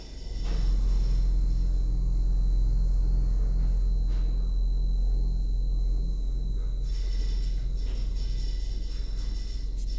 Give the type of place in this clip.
elevator